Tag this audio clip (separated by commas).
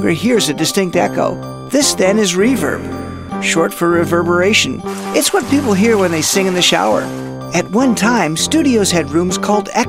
Music, Speech